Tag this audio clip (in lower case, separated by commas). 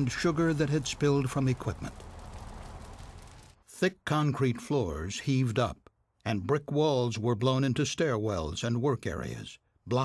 speech